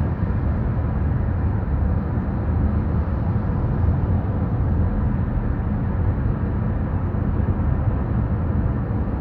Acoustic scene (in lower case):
car